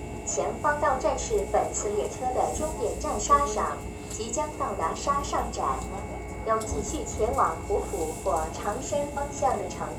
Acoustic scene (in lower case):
subway train